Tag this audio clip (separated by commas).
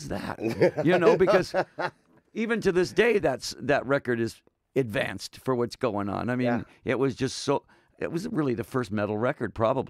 Speech